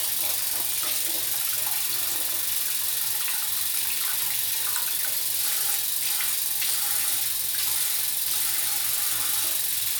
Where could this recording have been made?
in a restroom